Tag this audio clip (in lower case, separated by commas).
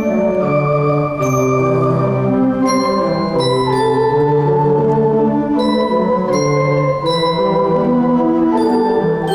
organ, music, keyboard (musical), musical instrument